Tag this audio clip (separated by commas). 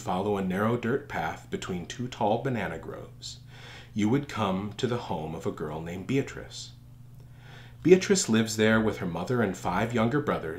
Speech